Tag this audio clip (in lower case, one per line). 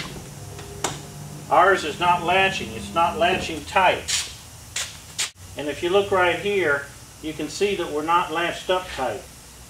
sliding door